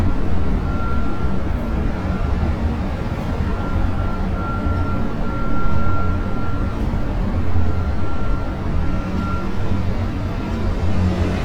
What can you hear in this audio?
engine of unclear size